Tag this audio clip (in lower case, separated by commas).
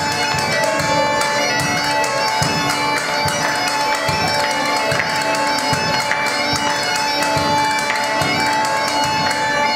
playing castanets